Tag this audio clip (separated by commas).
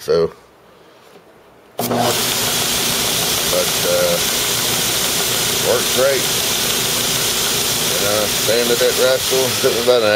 Speech